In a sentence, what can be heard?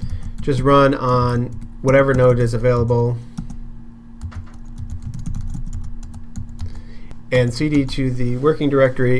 Man speaking, typing, tapping, keyboard